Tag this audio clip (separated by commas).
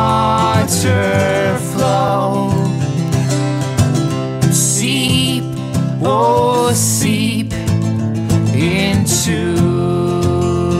Music, New-age music